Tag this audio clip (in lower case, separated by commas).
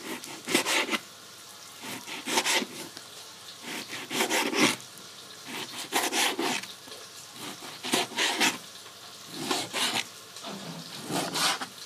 home sounds, frying (food)